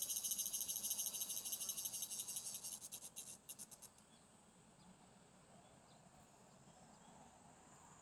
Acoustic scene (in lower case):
park